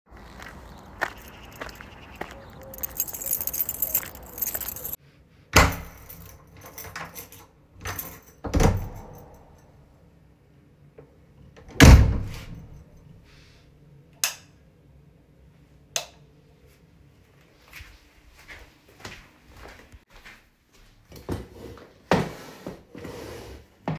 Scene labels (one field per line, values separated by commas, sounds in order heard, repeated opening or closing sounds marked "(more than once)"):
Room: kitchen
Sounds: footsteps, keys, door (more than once), light switch